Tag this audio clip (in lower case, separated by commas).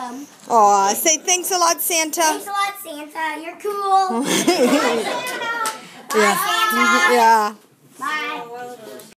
speech, child speech